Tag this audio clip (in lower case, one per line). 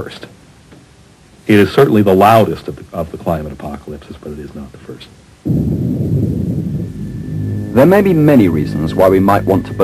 white noise